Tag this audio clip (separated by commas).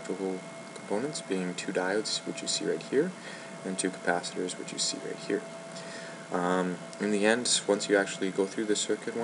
Speech